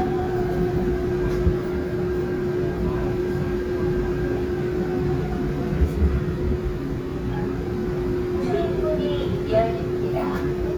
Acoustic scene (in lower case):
subway train